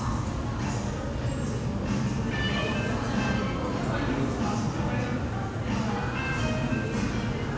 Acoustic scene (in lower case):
crowded indoor space